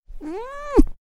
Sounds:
cat
domestic animals
animal
meow

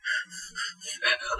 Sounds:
breathing
respiratory sounds

